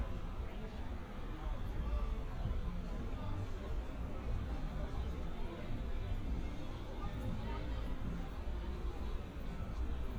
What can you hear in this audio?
person or small group talking